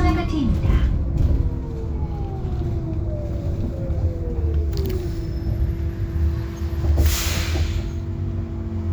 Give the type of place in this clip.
bus